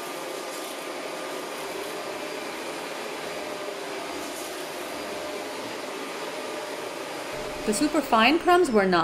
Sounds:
vacuum cleaner cleaning floors

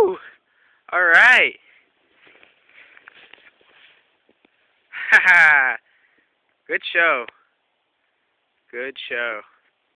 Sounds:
Speech

